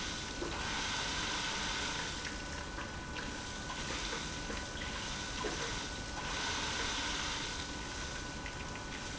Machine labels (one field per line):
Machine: pump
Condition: abnormal